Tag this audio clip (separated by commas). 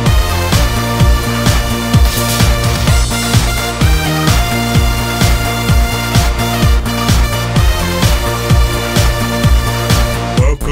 Music